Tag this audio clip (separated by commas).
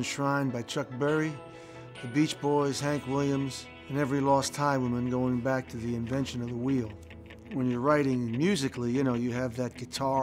Speech, Music